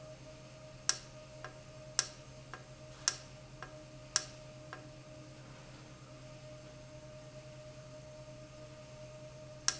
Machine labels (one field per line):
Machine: valve